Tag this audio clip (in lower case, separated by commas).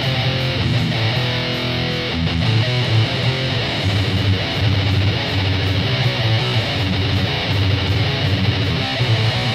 musical instrument, guitar, plucked string instrument, bass guitar, music, strum